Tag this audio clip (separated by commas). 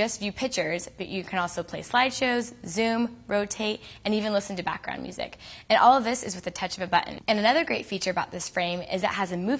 Speech, inside a small room